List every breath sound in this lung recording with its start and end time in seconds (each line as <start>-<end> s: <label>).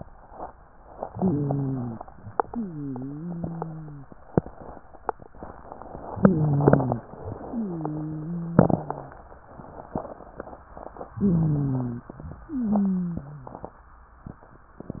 1.08-2.01 s: inhalation
1.08-2.01 s: wheeze
2.47-4.10 s: wheeze
6.19-7.12 s: inhalation
6.19-7.12 s: wheeze
7.46-9.20 s: wheeze
11.20-12.12 s: inhalation
11.20-12.12 s: wheeze
12.48-13.78 s: wheeze